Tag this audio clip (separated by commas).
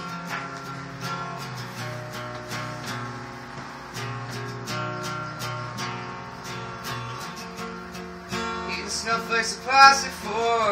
Music